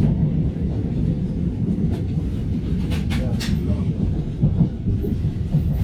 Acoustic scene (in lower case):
subway train